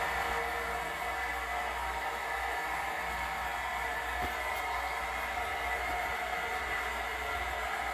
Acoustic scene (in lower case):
restroom